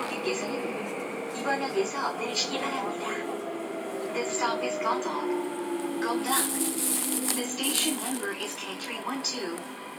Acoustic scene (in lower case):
subway train